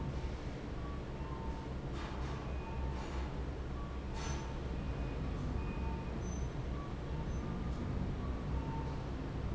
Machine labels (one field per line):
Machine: fan